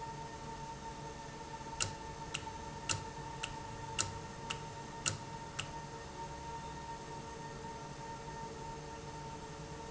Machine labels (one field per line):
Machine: valve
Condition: normal